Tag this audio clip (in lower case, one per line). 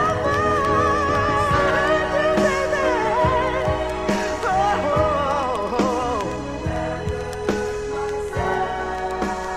soul music